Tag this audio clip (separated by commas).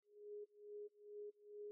Alarm